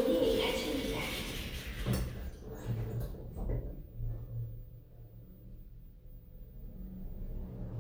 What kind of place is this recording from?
elevator